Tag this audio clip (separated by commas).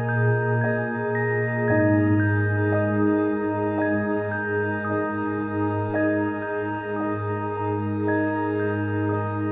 Music